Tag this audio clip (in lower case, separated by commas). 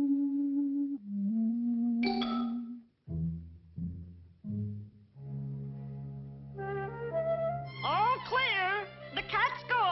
music, speech